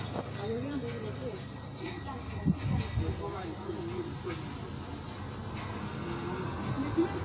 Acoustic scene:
residential area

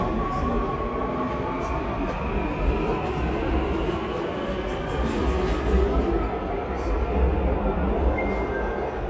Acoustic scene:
subway station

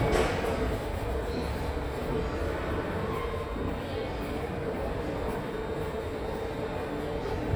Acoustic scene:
subway station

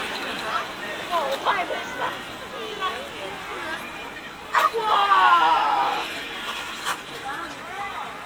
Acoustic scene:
park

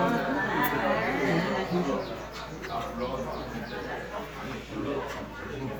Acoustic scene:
crowded indoor space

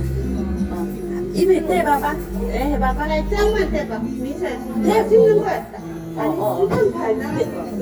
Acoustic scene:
restaurant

